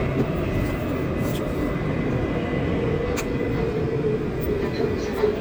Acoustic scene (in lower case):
subway train